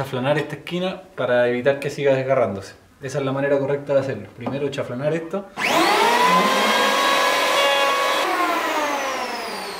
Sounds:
planing timber

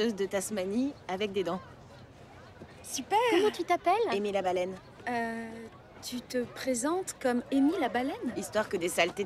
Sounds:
speech

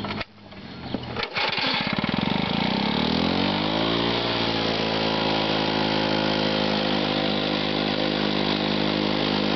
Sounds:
power tool, tools

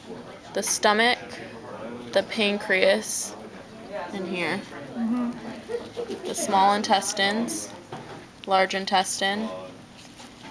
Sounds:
speech

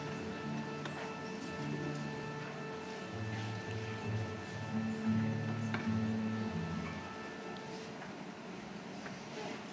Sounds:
plucked string instrument, orchestra, strum, guitar, music, acoustic guitar, musical instrument

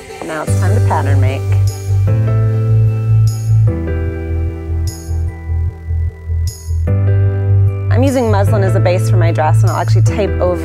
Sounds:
music, speech

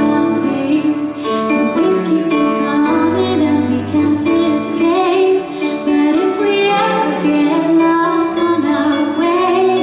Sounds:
music

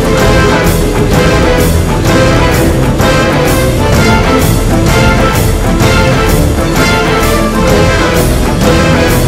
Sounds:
music, soundtrack music

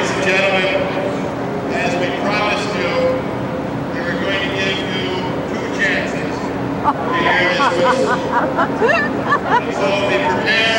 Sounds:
inside a public space, speech

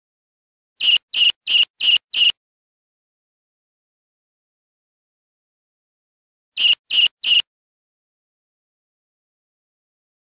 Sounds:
frog croaking

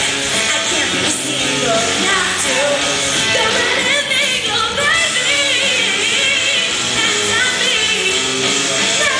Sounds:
female singing, music

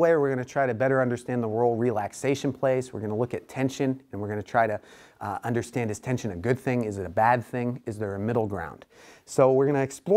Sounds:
speech

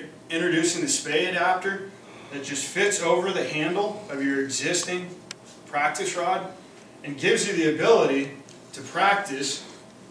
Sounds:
speech

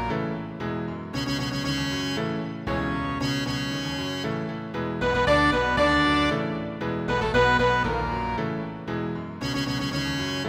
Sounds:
music, guitar, musical instrument, electric guitar

